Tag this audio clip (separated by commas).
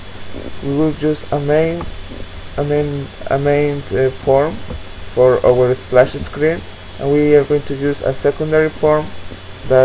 Speech